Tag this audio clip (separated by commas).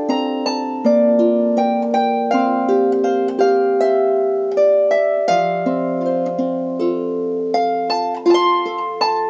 Music